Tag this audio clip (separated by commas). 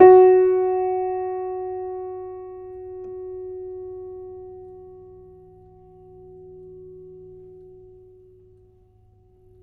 Music, Musical instrument, Piano, Keyboard (musical)